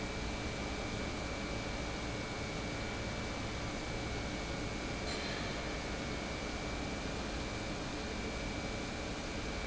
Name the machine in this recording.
pump